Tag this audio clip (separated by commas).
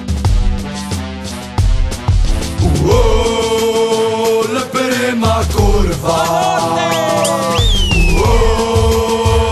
Music